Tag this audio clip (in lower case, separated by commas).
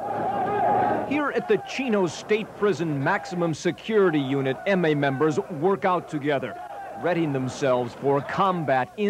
speech